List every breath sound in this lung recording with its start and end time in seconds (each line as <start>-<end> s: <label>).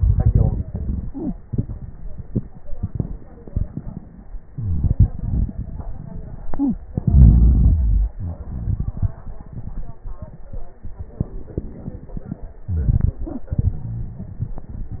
6.92-8.11 s: inhalation
8.16-9.21 s: exhalation
11.27-12.59 s: inhalation